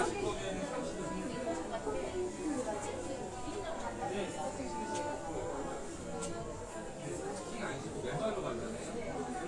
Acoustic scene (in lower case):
crowded indoor space